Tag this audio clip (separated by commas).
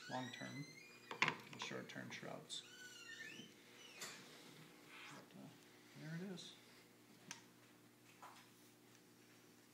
Speech